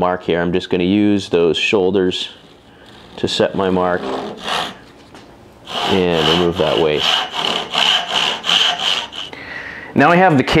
A man speaks followed by scraping